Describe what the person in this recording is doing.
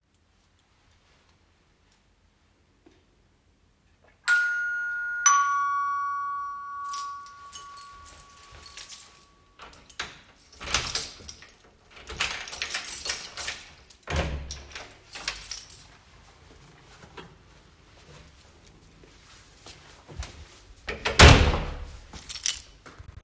The doorbell rang so i picked up my keys and unlocked the door by inserting the key into the lock and turning it. Afterwards I opened the door and let my guest come in. Then i closed the door and took the key.